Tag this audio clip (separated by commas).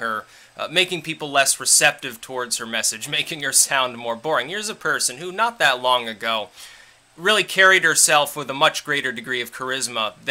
Speech